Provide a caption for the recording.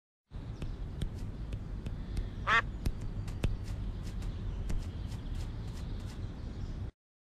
A duck quacks a single time